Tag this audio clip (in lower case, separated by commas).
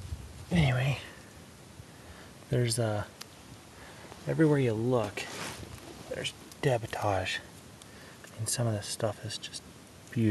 speech